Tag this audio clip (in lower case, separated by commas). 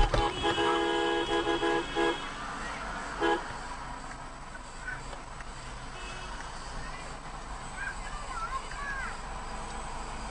speech